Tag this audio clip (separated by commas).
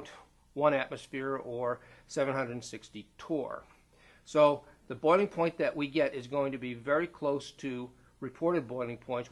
Speech